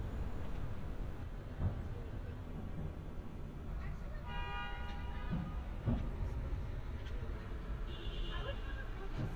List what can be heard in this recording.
car horn, person or small group talking